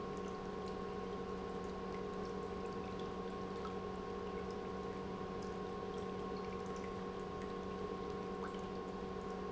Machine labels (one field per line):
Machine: pump